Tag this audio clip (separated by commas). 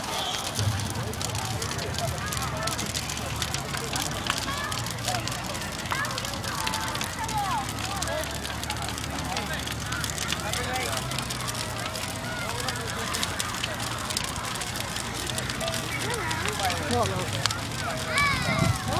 Crackle, Fire